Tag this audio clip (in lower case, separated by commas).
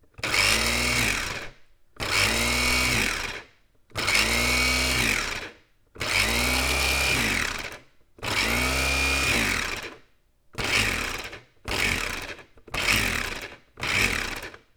domestic sounds